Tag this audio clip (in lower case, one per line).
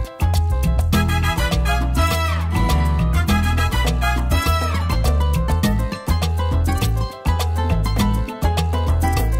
music